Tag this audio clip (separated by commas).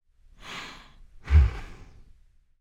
Respiratory sounds, Breathing